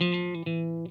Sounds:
Musical instrument, Electric guitar, Plucked string instrument, Music, Guitar

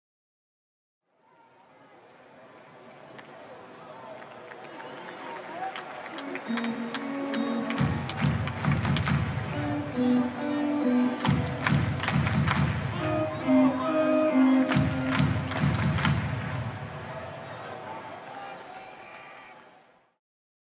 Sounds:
Organ, Keyboard (musical), Musical instrument, Music

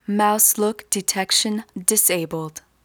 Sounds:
Human voice, Female speech, Speech

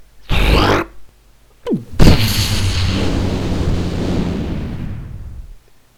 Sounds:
Explosion

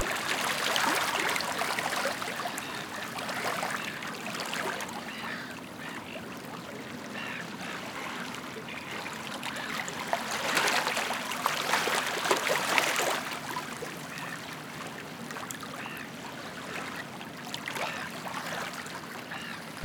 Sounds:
seagull, Water, Wild animals, Waves, Animal, Ocean, Bird

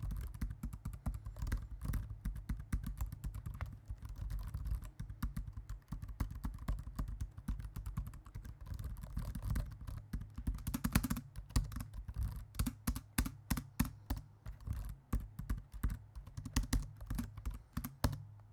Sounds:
Typing, Domestic sounds, Computer keyboard

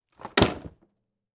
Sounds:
Thump

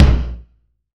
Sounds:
Bass drum, Drum, Musical instrument, Percussion, Music

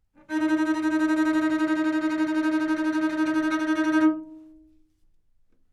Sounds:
Musical instrument, Music, Bowed string instrument

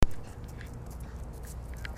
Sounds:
Animal, Dog, Domestic animals

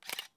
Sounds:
Mechanisms, Camera

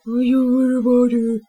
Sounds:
Human voice, Speech

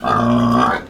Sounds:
livestock, Animal

